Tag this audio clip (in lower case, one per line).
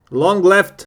human voice